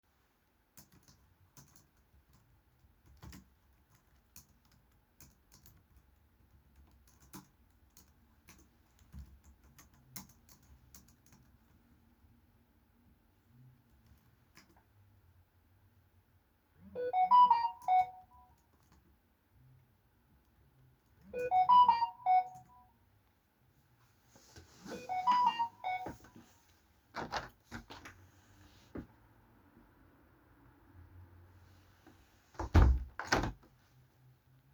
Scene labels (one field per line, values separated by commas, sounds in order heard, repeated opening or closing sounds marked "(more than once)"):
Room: office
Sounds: keyboard typing, phone ringing, window (more than once)